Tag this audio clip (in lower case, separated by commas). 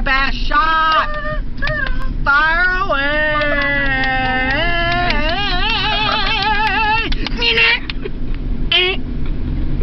male singing